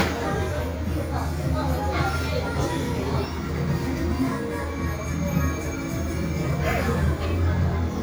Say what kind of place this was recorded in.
cafe